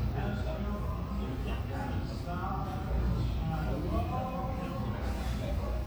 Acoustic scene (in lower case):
cafe